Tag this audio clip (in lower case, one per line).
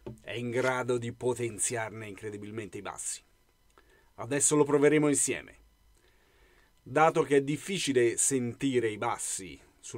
speech